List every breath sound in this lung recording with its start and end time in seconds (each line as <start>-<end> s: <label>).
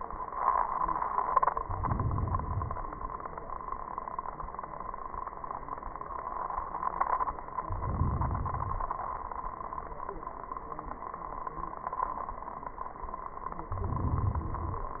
1.50-3.00 s: inhalation
7.62-9.07 s: inhalation
13.60-14.99 s: inhalation